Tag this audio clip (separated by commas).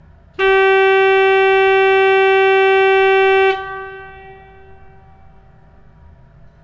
Music, Organ, Keyboard (musical), Musical instrument